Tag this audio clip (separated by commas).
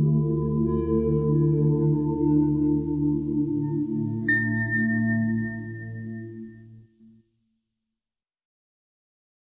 Music